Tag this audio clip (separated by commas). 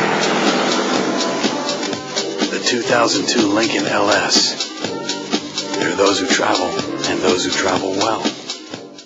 Music, Speech, Vehicle